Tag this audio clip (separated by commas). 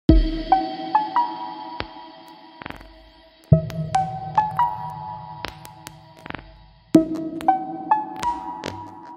Music, Electronic music